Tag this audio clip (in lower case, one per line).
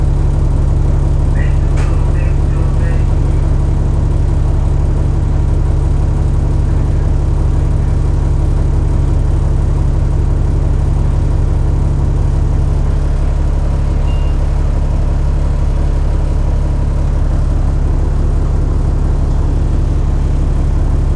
vehicle
bus
motor vehicle (road)